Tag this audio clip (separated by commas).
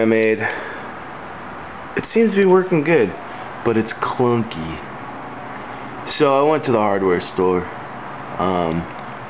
Speech